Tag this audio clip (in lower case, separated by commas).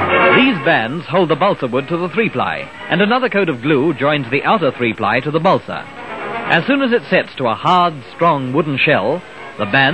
speech, music